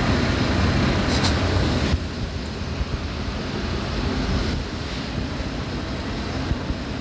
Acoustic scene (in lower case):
street